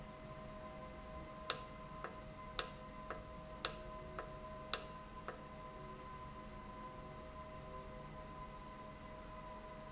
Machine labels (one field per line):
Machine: valve